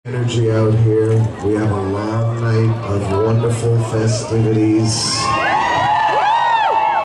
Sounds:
monologue, Male speech, Speech

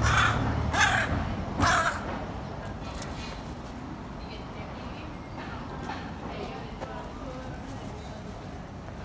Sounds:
crow cawing

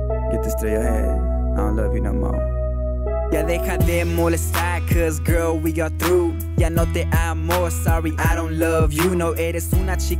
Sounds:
Speech, Pop music, Music

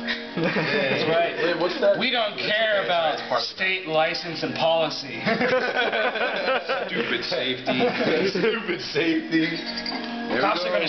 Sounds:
Speech

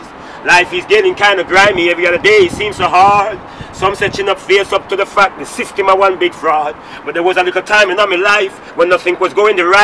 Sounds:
Speech

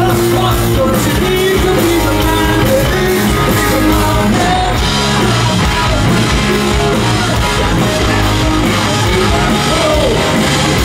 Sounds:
Music

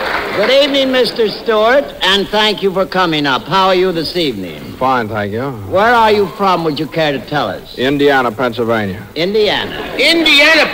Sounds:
Speech

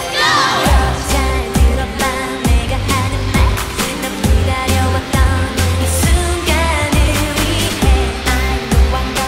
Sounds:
Music of Asia, Singing

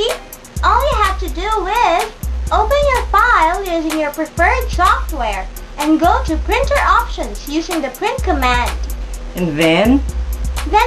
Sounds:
Music, Speech

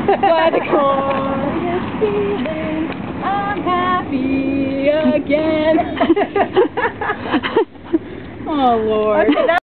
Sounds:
Speech, Female singing

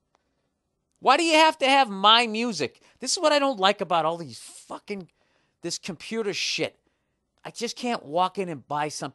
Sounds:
Speech

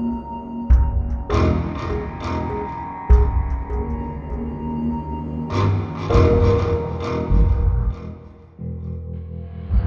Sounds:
Music

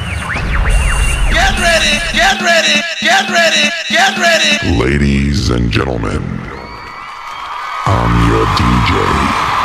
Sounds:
Music

